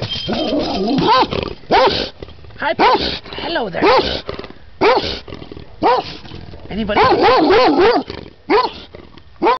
A dog barks and growls, a person speaks